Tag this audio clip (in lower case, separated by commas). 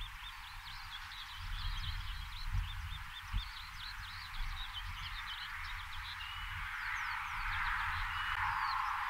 pheasant crowing